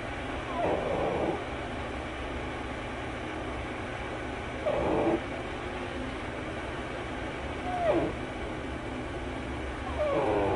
Animal whimpering quietly